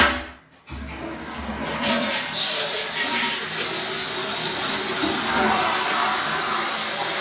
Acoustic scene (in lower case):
restroom